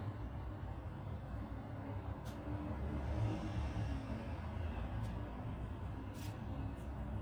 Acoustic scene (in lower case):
residential area